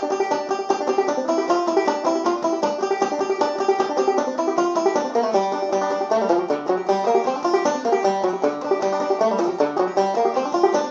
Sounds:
playing banjo
music
banjo
plucked string instrument
musical instrument

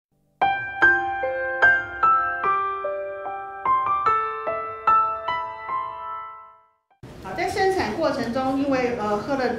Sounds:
speech
female speech
music

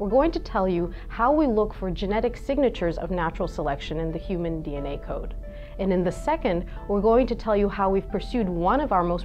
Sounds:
speech
music

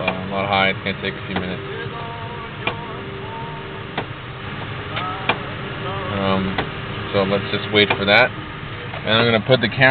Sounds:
car
vehicle
music
speech

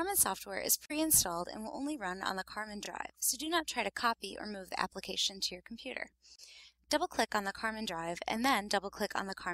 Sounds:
speech

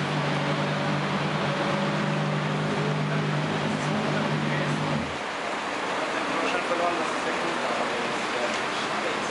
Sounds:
engine
speech
car
vehicle

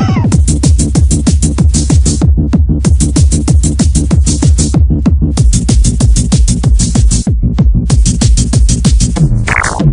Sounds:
music

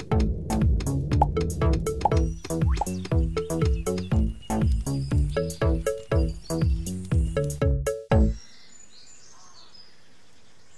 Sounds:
bird song
bird
tweet

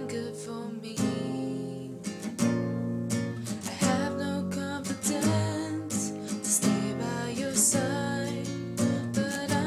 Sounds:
strum
guitar
music
musical instrument
plucked string instrument

